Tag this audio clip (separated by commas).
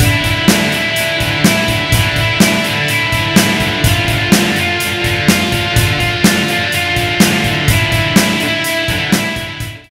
Music